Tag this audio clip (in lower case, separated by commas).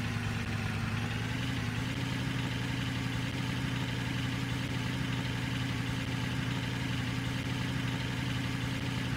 truck, vehicle